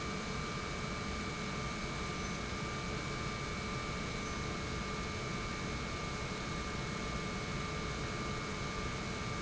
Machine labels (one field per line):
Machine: pump